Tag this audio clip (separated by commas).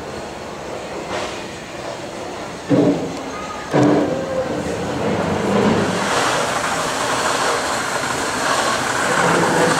Speech, Water vehicle, Vehicle